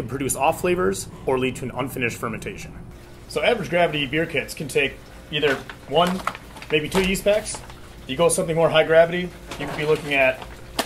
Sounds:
Speech

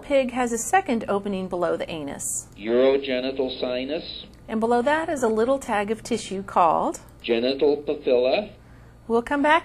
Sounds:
Speech

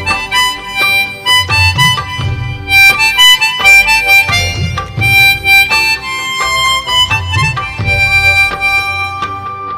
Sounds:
Harmonica, woodwind instrument

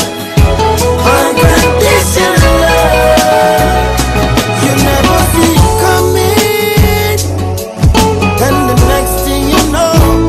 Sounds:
Music of Africa, Music

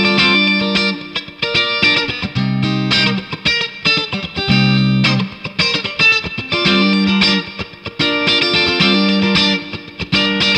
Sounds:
Musical instrument, Guitar, Music, Acoustic guitar, Plucked string instrument

